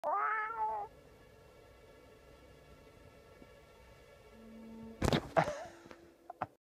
A cat meows, then someone laughs